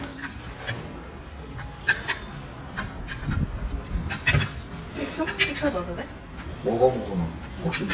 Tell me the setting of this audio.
restaurant